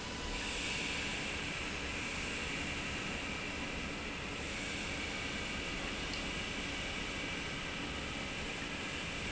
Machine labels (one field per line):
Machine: pump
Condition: normal